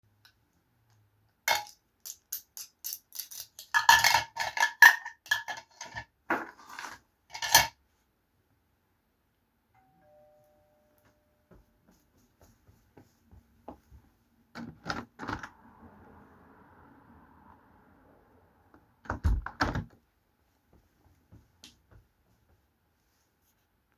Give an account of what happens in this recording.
I was arranging the dishes when the doorbell rang. Then I walked to the window. I opened and closed the window and looked outside to check if my package had arrived.